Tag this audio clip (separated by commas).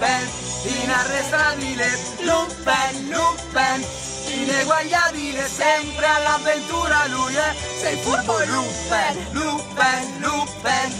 Music, Choir, Female singing, Male singing